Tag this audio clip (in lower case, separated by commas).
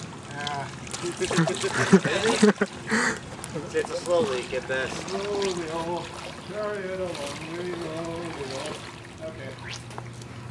vehicle, speech, water vehicle